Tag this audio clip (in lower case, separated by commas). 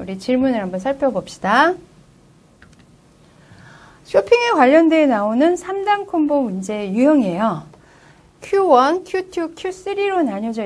speech